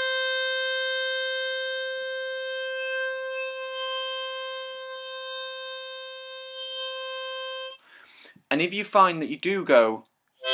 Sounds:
playing harmonica

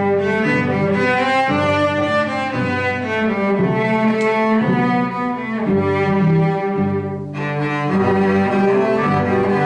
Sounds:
Music, Classical music

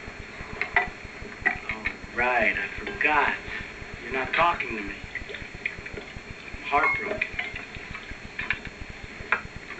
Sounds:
Liquid, Drip, Speech, outside, urban or man-made

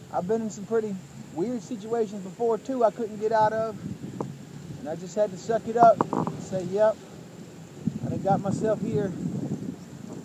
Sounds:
Speech, Vehicle, Car, Rustling leaves

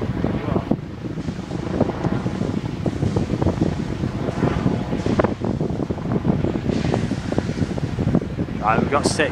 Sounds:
Wind, Wind noise (microphone)

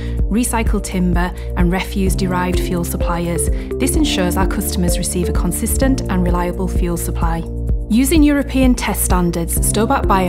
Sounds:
Speech, Music

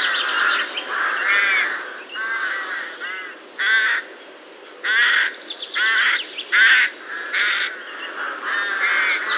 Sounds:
crow cawing

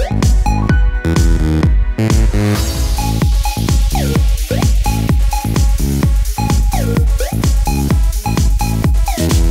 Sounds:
Music, Electronic dance music

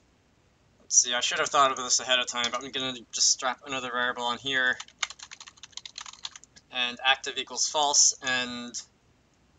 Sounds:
Clicking

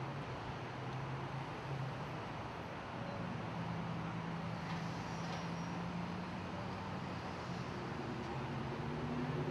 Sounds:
Vehicle

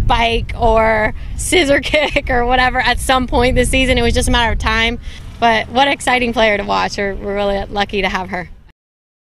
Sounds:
Speech

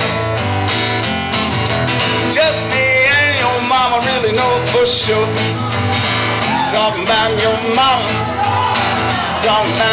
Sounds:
Country, Singing, Music

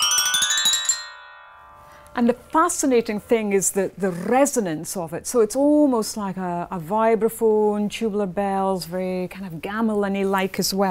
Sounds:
Percussion, Speech, Musical instrument, Music

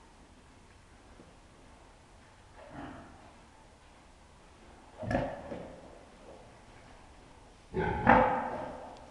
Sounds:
Oink, pig oinking

